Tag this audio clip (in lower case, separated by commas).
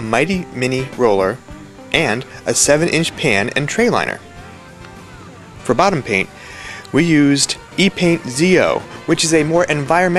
music, speech